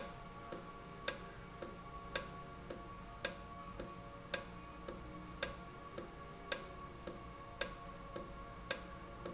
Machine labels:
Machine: valve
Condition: normal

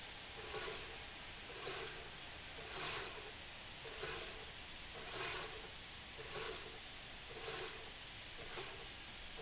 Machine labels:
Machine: slide rail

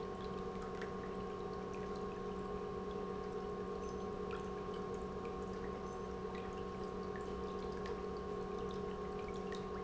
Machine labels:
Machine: pump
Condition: normal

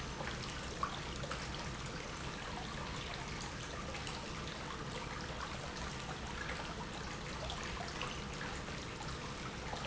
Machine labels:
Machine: pump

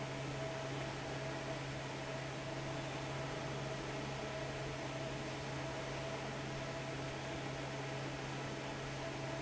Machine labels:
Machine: fan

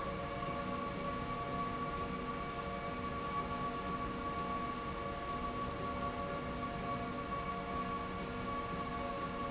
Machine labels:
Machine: slide rail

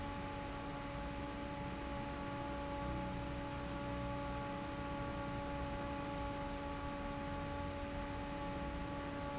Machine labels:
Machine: fan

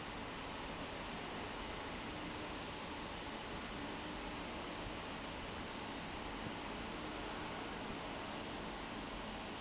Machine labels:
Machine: fan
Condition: abnormal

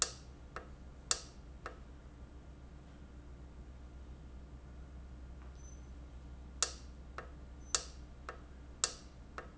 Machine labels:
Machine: valve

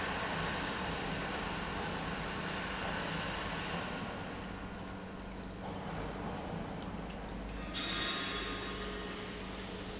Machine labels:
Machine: pump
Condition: normal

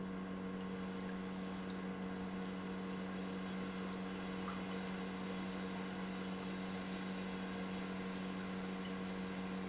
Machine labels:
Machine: pump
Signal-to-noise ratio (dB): 6 dB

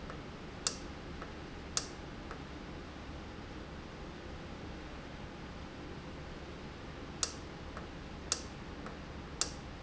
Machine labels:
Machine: valve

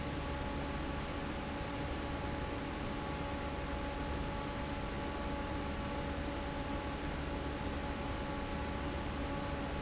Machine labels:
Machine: fan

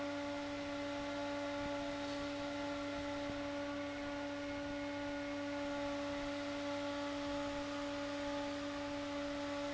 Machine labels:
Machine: fan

